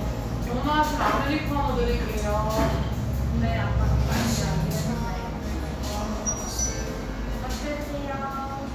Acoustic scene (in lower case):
cafe